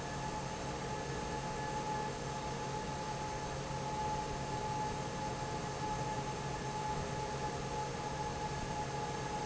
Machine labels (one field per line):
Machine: fan